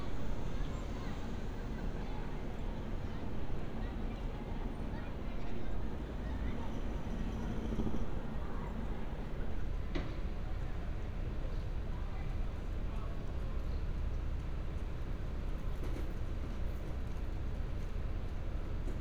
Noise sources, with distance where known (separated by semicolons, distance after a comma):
unidentified human voice